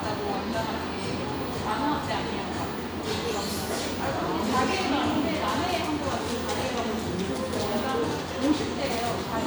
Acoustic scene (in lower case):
cafe